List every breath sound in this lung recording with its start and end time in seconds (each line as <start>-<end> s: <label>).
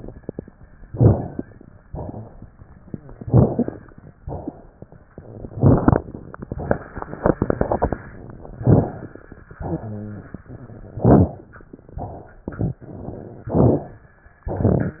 0.87-1.41 s: inhalation
0.87-1.41 s: crackles
1.86-2.43 s: exhalation
1.86-2.43 s: crackles
3.23-3.79 s: inhalation
3.23-3.79 s: crackles
4.23-4.72 s: exhalation
5.54-6.03 s: inhalation
5.54-6.03 s: crackles
8.62-9.05 s: inhalation
8.62-9.05 s: crackles
9.64-10.27 s: exhalation
9.79-10.27 s: rhonchi
11.03-11.46 s: inhalation
11.03-11.46 s: crackles
11.97-12.45 s: exhalation
11.97-12.45 s: crackles
13.55-13.98 s: inhalation
13.55-13.98 s: crackles